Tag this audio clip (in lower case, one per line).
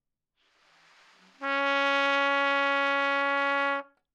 music
musical instrument
trumpet
brass instrument